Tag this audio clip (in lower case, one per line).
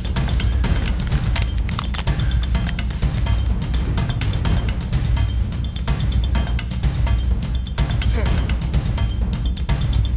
speech
music